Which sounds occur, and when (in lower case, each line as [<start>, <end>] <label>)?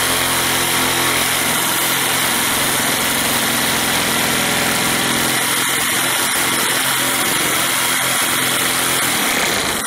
[0.00, 9.85] chainsaw